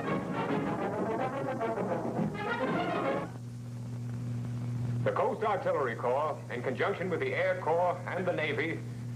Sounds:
speech
music

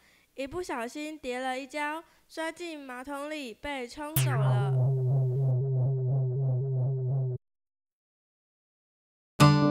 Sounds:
speech
music

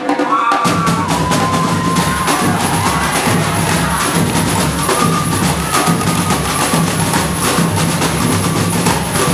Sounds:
percussion
music

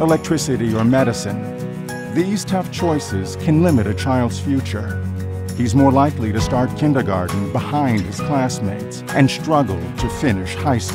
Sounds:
music
speech

